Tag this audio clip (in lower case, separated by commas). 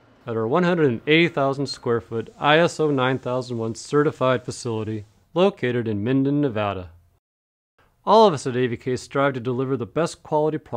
speech